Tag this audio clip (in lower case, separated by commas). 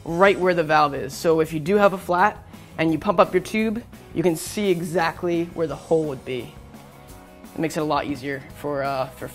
music, speech